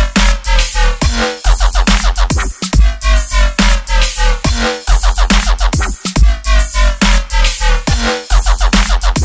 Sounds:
electronic music, music, dubstep

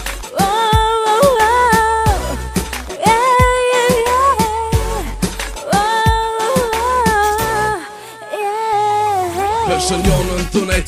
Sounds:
music

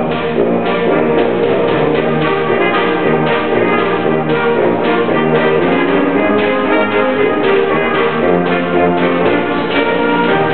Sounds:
jingle (music), music

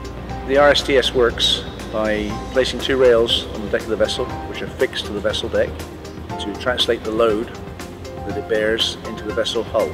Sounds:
music, speech

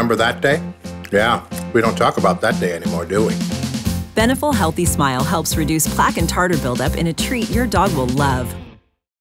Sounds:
speech, music

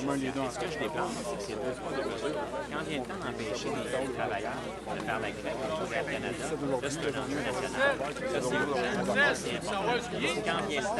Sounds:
speech, crowd

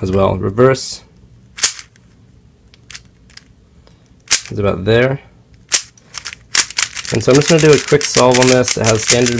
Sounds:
cap gun, speech

